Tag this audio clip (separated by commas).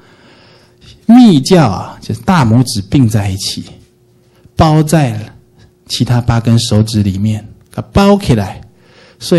Speech